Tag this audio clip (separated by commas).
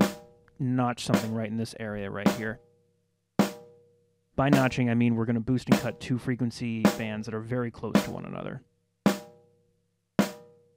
Music, Speech